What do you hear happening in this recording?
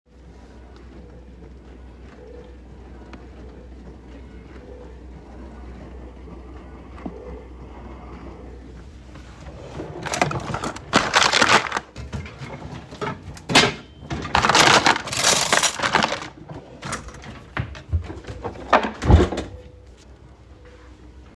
I turned on the dishwasher on. While the dishwasher was running, I opened a kitchen drawer and took out some silverware.